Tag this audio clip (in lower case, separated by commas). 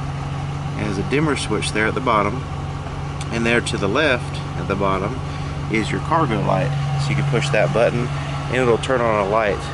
vehicle, car, outside, urban or man-made, speech